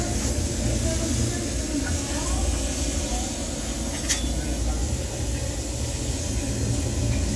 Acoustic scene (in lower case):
restaurant